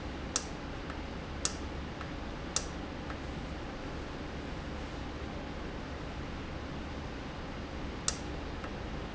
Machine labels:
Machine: valve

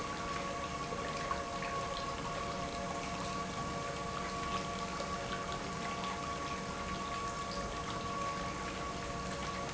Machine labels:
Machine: pump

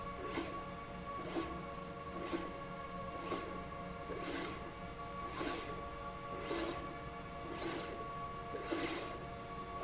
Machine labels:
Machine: slide rail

